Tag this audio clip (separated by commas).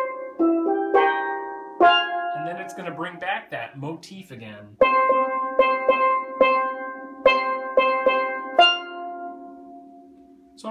playing steelpan